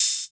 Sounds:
musical instrument, cymbal, percussion, music, hi-hat

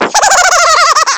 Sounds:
human voice, laughter

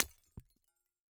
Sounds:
glass, shatter

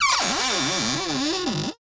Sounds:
cupboard open or close, domestic sounds

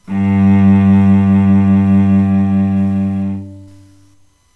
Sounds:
music, musical instrument, bowed string instrument

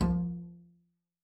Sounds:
bowed string instrument, music, musical instrument

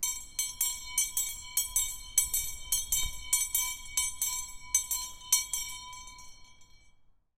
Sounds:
bell

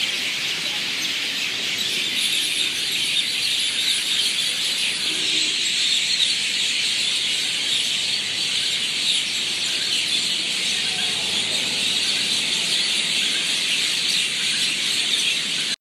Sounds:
bird vocalization, chirp, bird, wild animals, animal

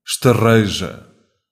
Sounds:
human voice

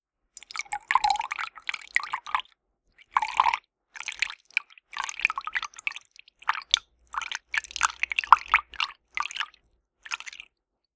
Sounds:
liquid, fill (with liquid)

